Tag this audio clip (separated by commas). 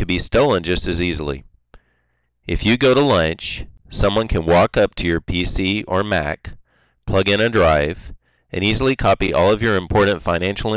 Speech